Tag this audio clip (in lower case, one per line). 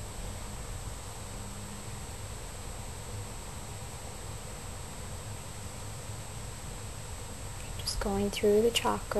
speech